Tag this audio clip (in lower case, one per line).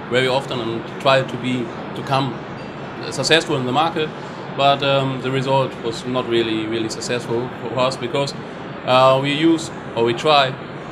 speech